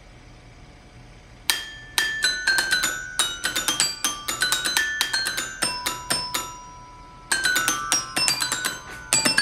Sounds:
music, xylophone

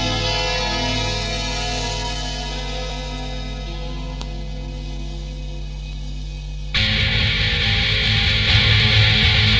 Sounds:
music

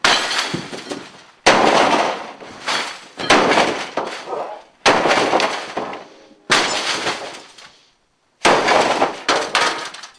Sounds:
smash

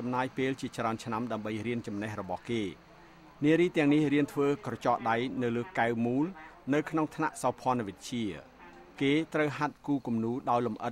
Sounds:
speech

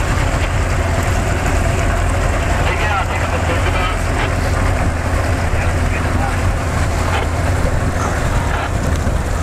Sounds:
wind noise (microphone), ocean, water vehicle, waves, wind, sailboat

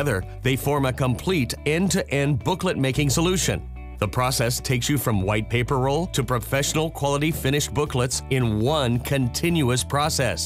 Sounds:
music, speech

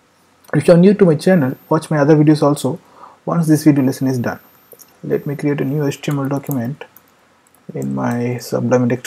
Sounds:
speech

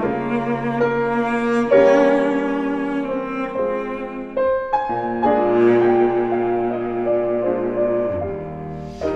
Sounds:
bowed string instrument, cello

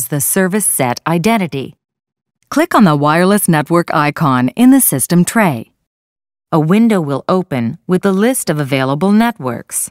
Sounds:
speech

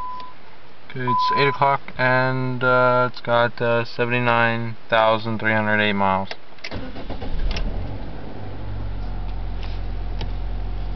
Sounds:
vehicle, speech, car

